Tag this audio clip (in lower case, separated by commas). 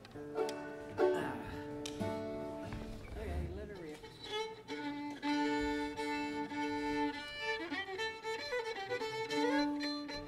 musical instrument, music, speech, violin